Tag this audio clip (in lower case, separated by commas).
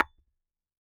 glass, tools, tap, hammer